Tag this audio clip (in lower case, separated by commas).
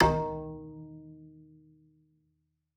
bowed string instrument, music, musical instrument